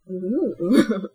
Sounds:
laughter
human voice

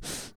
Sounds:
respiratory sounds
breathing

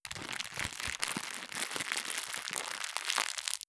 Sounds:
crackle

